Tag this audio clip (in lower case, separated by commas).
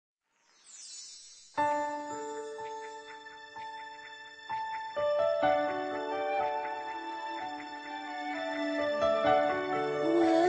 music, inside a large room or hall